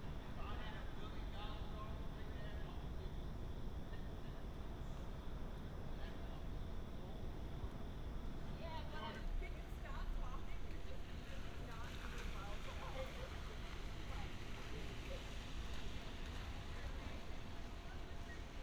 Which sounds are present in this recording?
person or small group talking